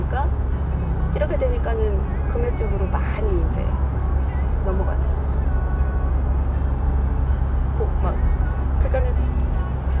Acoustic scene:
car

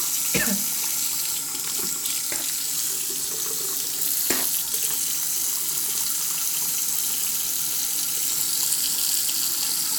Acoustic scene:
restroom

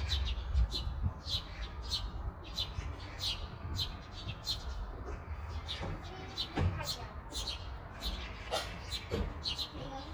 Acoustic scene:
park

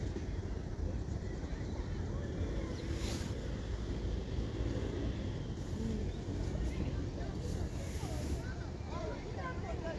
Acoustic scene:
residential area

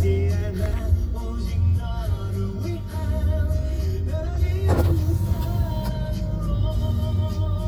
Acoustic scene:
car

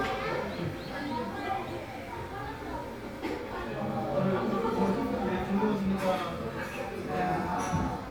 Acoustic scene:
crowded indoor space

